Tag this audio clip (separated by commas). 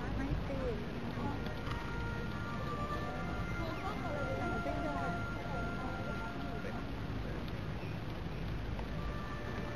outside, urban or man-made, Speech, Music